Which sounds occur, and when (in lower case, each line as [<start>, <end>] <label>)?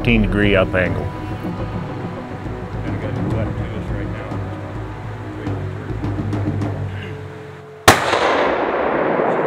[0.00, 0.85] man speaking
[0.01, 9.45] music
[6.73, 7.52] cough
[7.83, 9.45] gunfire